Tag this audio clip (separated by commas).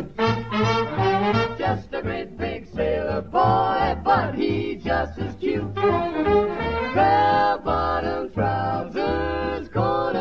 Music